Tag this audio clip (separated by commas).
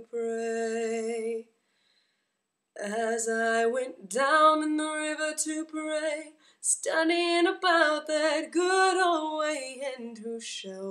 Female singing